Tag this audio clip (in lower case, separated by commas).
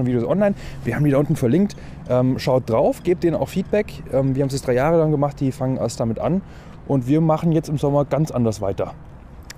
speech